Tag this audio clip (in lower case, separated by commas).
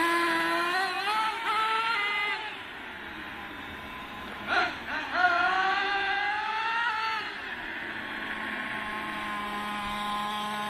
vehicle, revving, car